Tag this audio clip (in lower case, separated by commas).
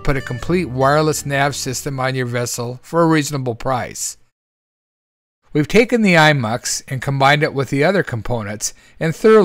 music, speech